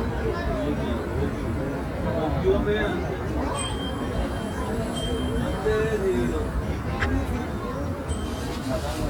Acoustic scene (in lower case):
residential area